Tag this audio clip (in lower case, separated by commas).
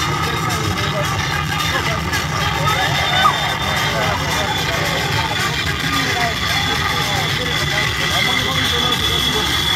roller coaster running